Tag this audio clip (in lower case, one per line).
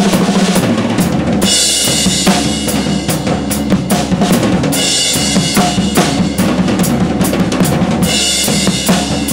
drum
music
drum kit
bass drum
musical instrument